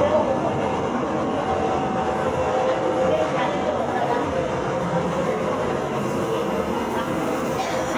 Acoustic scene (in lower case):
subway train